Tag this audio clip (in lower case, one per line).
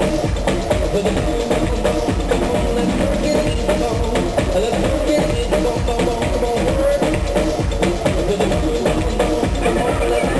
blues
music
rhythm and blues
exciting music